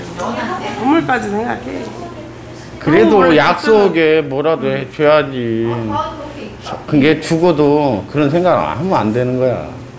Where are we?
in a crowded indoor space